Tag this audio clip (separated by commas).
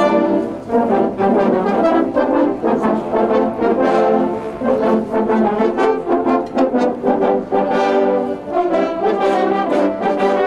Brass instrument, Music